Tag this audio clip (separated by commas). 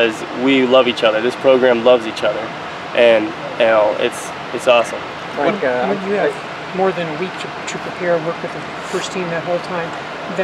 Speech